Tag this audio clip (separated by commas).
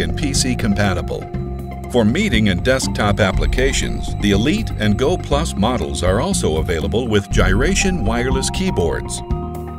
Music, Speech